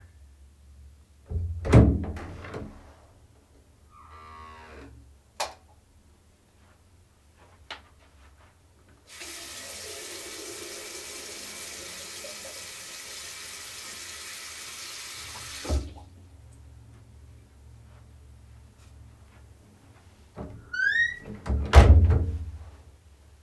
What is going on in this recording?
I opened the bathroom door, walked in, and switched on the light. Then I ran water in the sink for several seconds and closed the door at the end.